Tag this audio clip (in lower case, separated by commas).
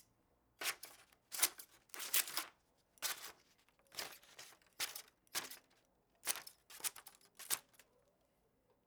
scissors, home sounds